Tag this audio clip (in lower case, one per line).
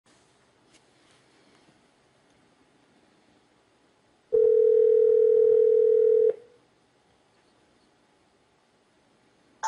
dial tone
music
telephone